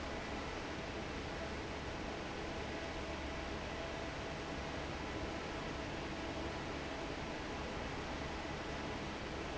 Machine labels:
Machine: fan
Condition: normal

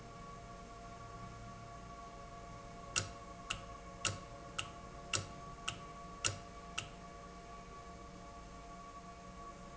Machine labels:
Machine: valve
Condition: normal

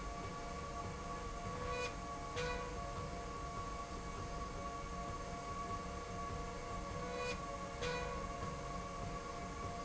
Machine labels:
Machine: slide rail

